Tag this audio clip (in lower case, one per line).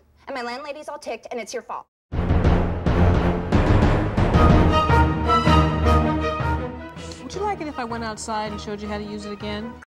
music
speech